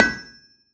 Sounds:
Tools

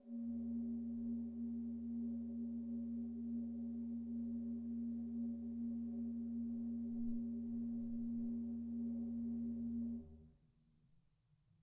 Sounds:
Organ, Keyboard (musical), Music, Musical instrument

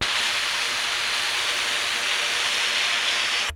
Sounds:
Hiss

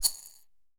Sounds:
Rattle

